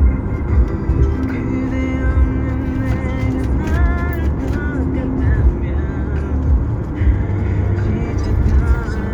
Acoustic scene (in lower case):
car